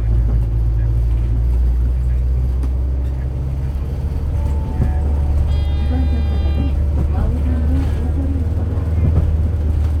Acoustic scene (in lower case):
bus